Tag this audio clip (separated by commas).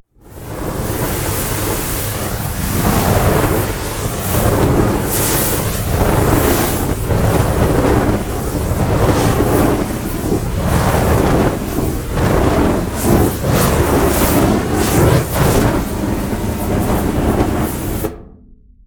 Fire